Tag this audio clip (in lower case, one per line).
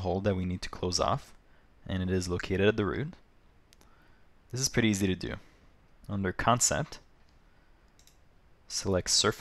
speech